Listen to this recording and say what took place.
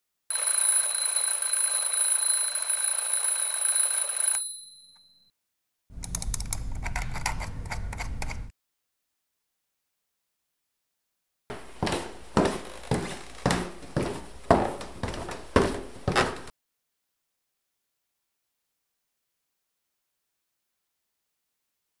Phone on bedside desk. Alarm went off, bedside lamp toggled on, footsteps across wooden floor toward the door.